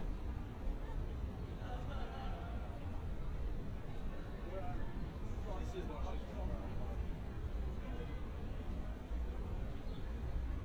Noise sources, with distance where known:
person or small group talking, near

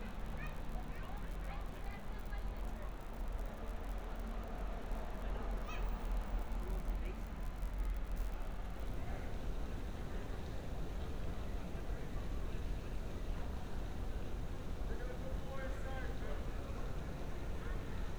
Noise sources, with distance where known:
person or small group talking

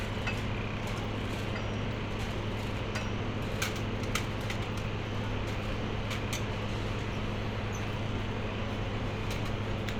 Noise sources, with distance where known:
engine of unclear size

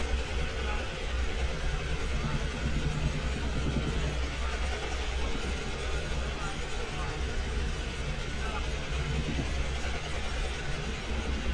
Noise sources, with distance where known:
unidentified powered saw, near; unidentified human voice, near

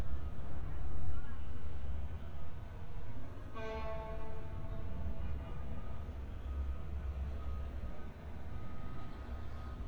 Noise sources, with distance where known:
car horn, far

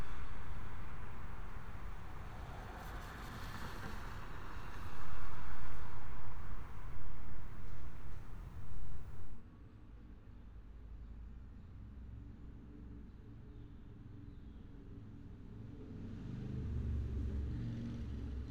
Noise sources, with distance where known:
medium-sounding engine

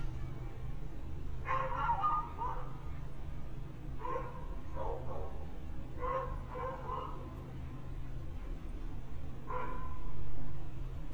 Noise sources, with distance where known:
dog barking or whining, far

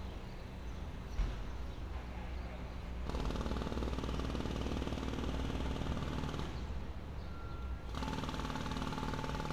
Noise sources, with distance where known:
jackhammer

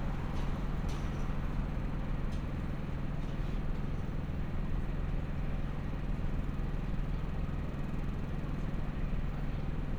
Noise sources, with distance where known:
small-sounding engine, near

